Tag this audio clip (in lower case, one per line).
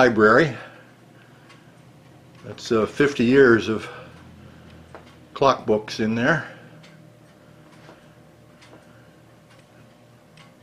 speech
tick-tock